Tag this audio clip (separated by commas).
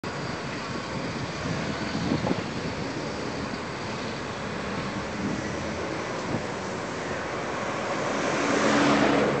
Vehicle, Bus